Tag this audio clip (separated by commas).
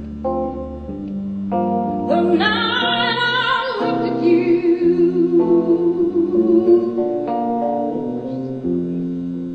inside a public space, Music, Plucked string instrument, inside a large room or hall, Musical instrument, Guitar, Singing